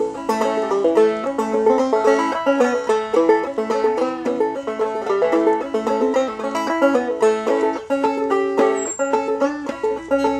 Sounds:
music

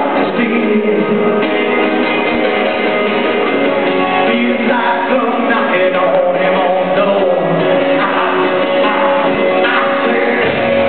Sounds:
music

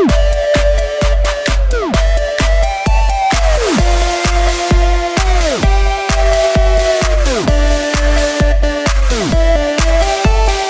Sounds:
house music, music

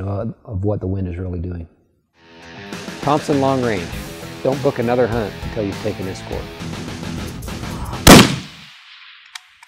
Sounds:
music, speech

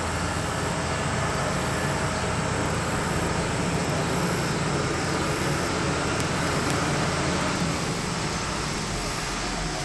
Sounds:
speedboat, vehicle

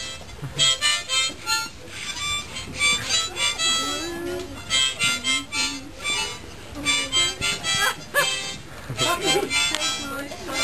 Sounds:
playing harmonica

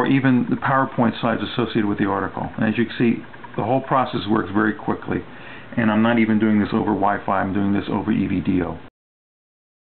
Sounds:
speech

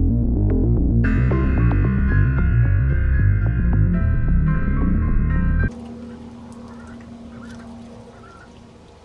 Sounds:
music, duck, animal

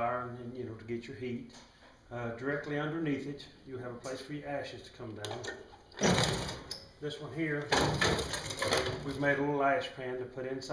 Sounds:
speech

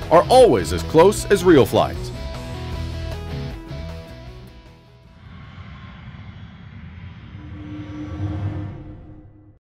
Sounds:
music, speech

